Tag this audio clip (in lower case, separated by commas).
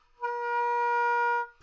musical instrument, music, wind instrument